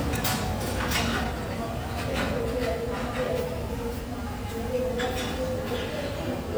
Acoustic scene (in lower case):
cafe